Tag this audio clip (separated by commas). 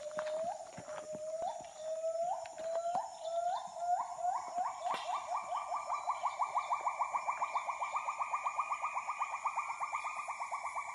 gibbon howling